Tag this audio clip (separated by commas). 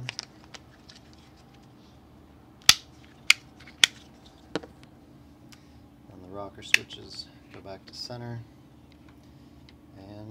Speech, inside a small room